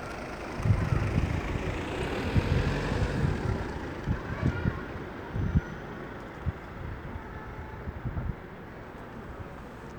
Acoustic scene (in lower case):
residential area